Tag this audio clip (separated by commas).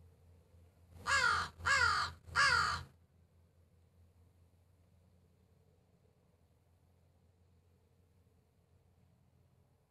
Crow, Animal, Caw